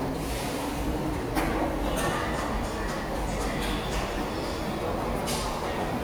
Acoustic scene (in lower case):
subway station